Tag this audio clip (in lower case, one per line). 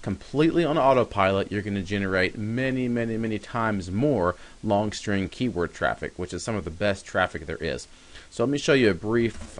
speech